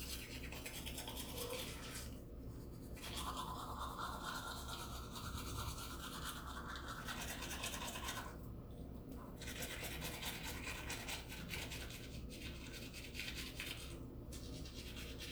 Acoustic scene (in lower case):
restroom